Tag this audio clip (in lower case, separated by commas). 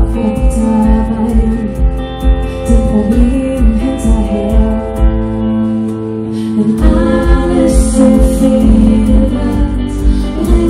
music